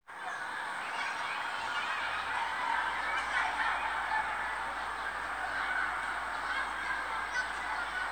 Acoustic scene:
residential area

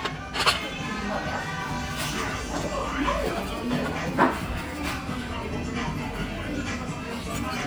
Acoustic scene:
restaurant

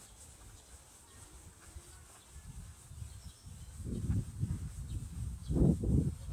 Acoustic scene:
park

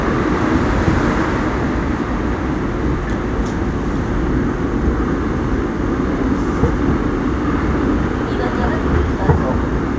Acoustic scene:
subway train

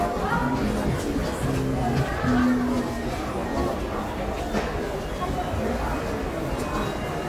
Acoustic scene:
subway station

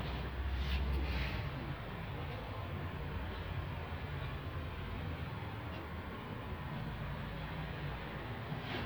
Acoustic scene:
residential area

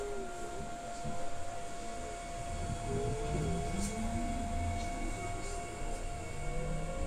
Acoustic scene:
subway train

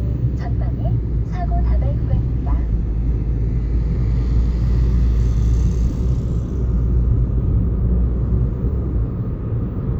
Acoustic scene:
car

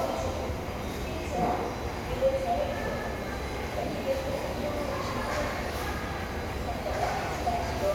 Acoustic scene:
subway station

